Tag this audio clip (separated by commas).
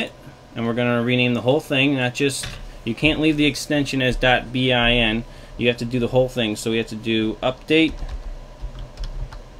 Speech, Computer keyboard